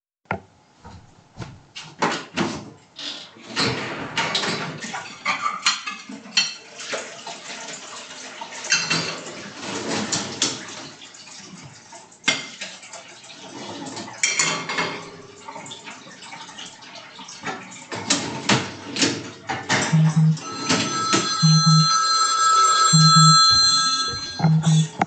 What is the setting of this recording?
kitchen